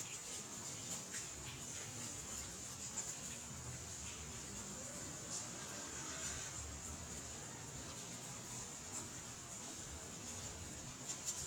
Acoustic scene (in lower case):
residential area